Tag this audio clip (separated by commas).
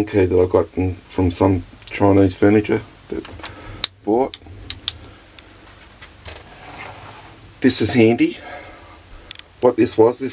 Speech